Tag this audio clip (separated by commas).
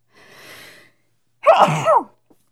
Sneeze, Respiratory sounds